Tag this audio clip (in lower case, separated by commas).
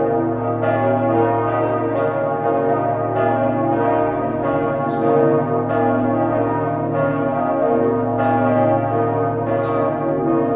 bell